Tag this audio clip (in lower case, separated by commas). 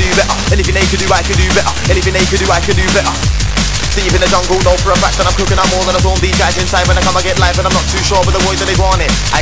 music, drum, musical instrument